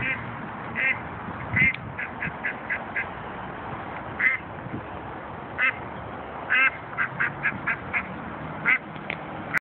A duck quacks repeatedly while a slight breeze blows